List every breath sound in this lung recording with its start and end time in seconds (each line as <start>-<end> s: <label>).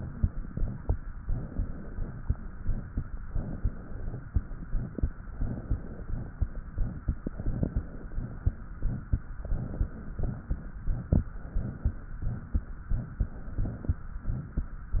0.00-0.91 s: exhalation
1.23-2.20 s: inhalation
2.22-3.17 s: exhalation
3.25-4.22 s: inhalation
4.30-5.14 s: exhalation
5.35-6.32 s: inhalation
6.34-7.00 s: exhalation
7.25-8.40 s: inhalation
8.74-9.30 s: exhalation
9.41-10.17 s: inhalation
10.17-10.74 s: exhalation
11.42-12.15 s: inhalation
12.15-12.84 s: exhalation
13.22-13.99 s: inhalation
14.21-14.84 s: exhalation
14.92-15.00 s: inhalation